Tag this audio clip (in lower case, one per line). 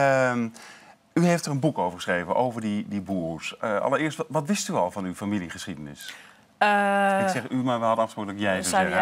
speech